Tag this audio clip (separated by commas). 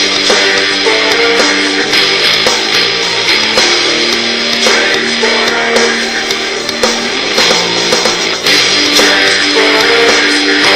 Music